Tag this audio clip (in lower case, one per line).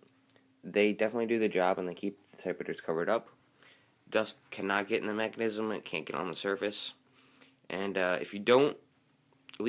speech